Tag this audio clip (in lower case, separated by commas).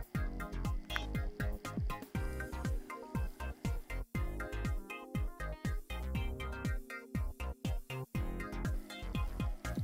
music, speech